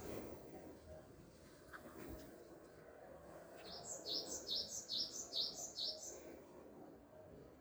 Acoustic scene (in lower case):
park